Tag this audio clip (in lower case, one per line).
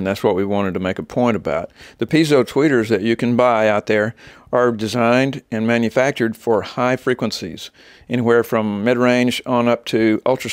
speech